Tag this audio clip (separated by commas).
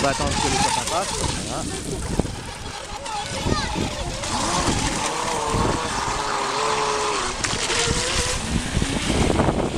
Speech